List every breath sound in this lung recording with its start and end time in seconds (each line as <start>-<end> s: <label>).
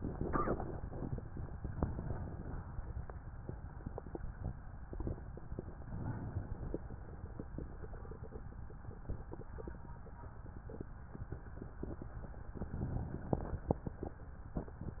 1.60-3.19 s: inhalation
5.66-7.02 s: inhalation
12.61-14.19 s: inhalation